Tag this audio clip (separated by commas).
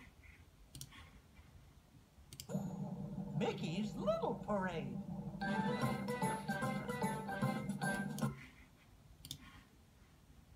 Music, Speech